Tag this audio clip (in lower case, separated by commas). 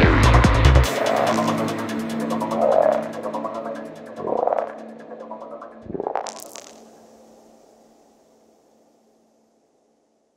music, electronic music, trance music